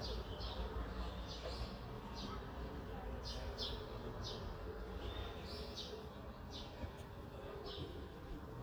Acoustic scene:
residential area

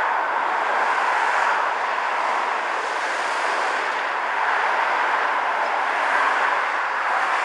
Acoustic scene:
street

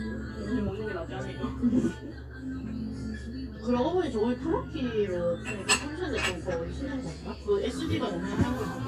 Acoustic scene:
cafe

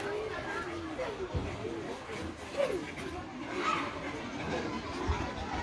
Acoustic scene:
park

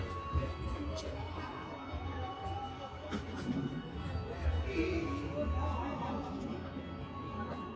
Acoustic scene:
park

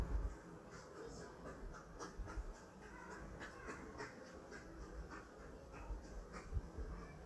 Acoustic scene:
residential area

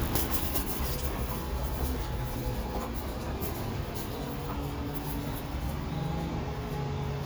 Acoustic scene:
elevator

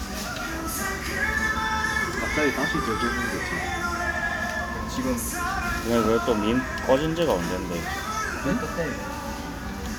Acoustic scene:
restaurant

